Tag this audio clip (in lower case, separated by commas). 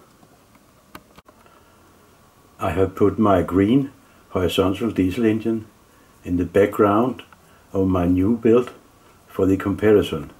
speech